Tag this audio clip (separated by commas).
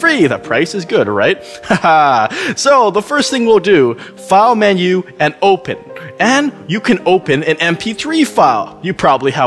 Music, Speech